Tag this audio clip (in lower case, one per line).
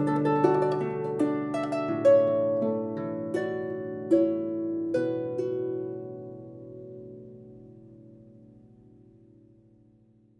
playing harp